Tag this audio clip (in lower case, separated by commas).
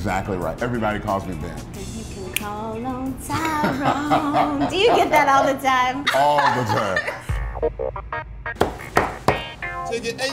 speech, music